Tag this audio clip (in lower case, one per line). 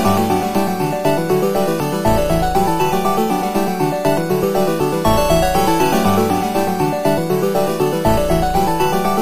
video game music
electronic music
music